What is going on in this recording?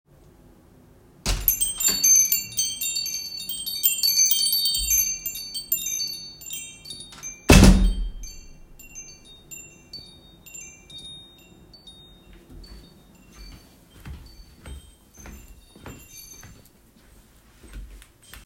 I returned home and bells rang when I opened the door.